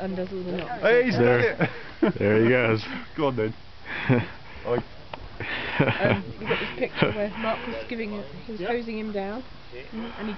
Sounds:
speech

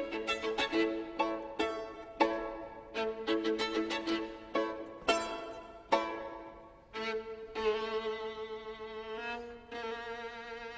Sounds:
musical instrument
fiddle
music

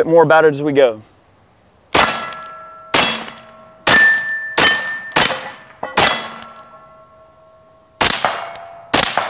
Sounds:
machine gun shooting

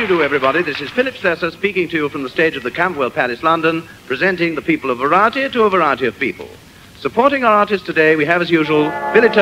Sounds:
speech

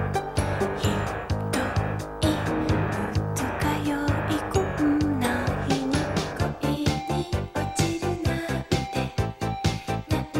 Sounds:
musical instrument
music

